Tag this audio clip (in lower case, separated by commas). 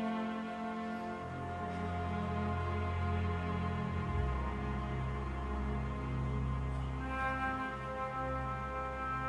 orchestra, musical instrument, music